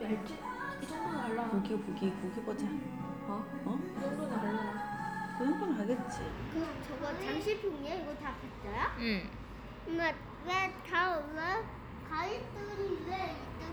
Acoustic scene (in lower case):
cafe